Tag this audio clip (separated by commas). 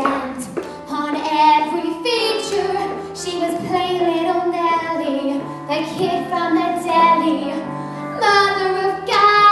Music, Female singing